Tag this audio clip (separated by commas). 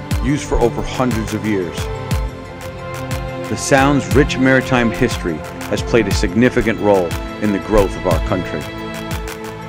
Speech, Music